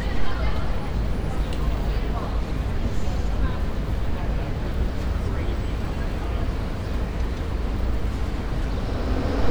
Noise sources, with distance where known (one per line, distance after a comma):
unidentified human voice, near